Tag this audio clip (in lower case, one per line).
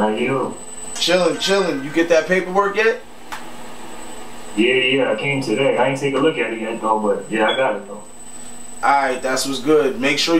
speech